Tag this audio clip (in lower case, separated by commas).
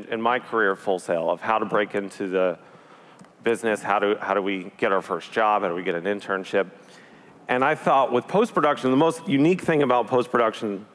speech